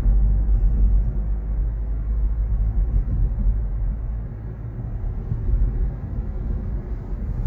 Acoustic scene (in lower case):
car